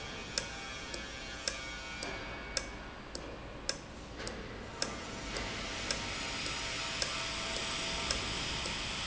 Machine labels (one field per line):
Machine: valve